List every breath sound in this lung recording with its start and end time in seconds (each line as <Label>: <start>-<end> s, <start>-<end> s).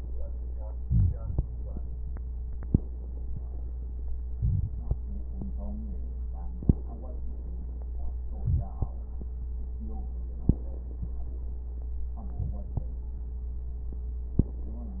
Inhalation: 0.78-1.42 s, 4.31-4.95 s, 8.38-8.69 s, 12.34-12.74 s
Crackles: 4.30-4.94 s